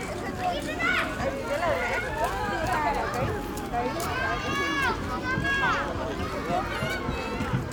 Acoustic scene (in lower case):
park